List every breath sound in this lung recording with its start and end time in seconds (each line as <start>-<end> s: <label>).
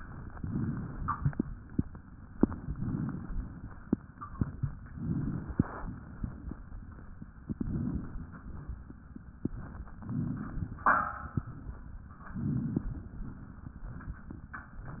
0.32-1.33 s: inhalation
2.50-3.72 s: inhalation
4.93-6.15 s: inhalation
7.48-8.48 s: inhalation
9.96-10.97 s: inhalation
12.37-13.38 s: inhalation